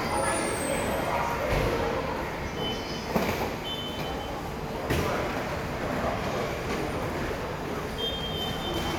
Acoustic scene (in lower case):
subway station